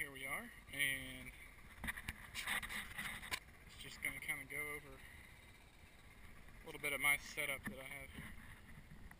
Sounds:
speech

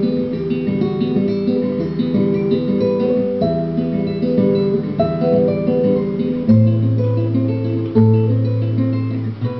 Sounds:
musical instrument, guitar, strum, acoustic guitar, music, plucked string instrument

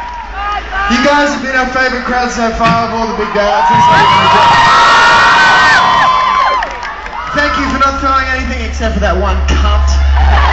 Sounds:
music, speech, outside, urban or man-made

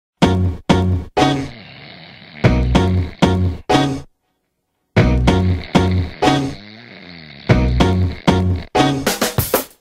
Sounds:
music

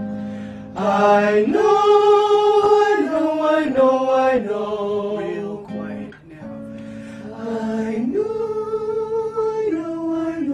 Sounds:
speech, choir, male singing, music

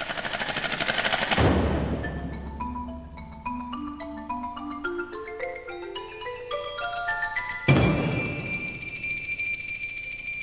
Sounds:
vibraphone, playing vibraphone, percussion, music

